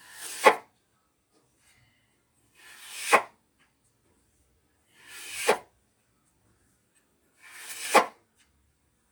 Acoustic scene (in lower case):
kitchen